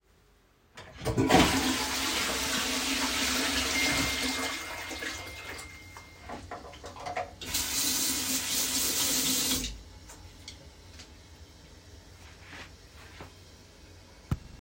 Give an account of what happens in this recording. while I was flushing the toilet I recevied a notification then I used the soap dispenser and water to wash my hands